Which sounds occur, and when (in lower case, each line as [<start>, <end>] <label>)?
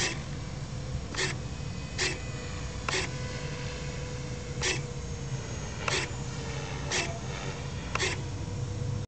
[0.00, 0.18] scrape
[0.00, 9.00] mechanisms
[1.09, 1.29] scrape
[1.10, 1.17] clicking
[1.91, 2.11] scrape
[2.82, 2.92] clicking
[2.85, 3.02] scrape
[4.55, 4.70] scrape
[5.81, 5.90] clicking
[5.84, 6.02] scrape
[6.87, 7.01] scrape
[7.89, 7.94] clicking
[7.96, 8.15] scrape